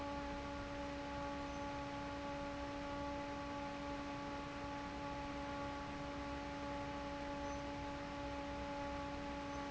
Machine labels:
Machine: fan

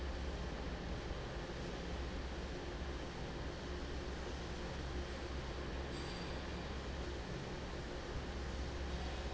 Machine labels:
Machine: fan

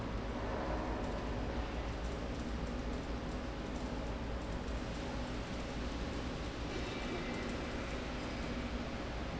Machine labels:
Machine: slide rail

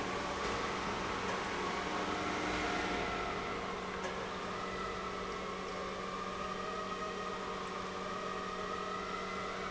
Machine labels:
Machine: pump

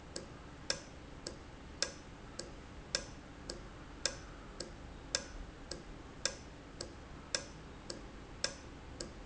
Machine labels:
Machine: valve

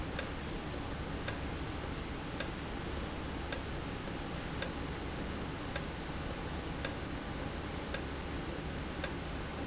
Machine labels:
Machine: valve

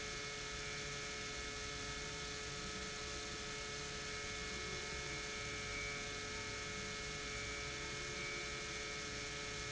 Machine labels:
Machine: pump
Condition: normal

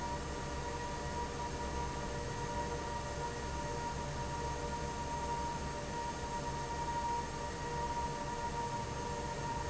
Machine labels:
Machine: fan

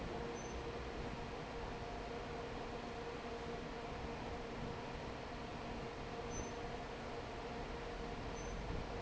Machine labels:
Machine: fan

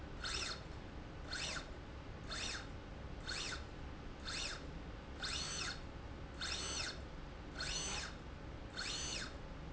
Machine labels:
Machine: slide rail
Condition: normal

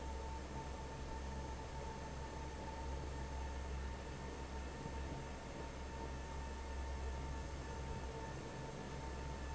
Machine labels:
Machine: fan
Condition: normal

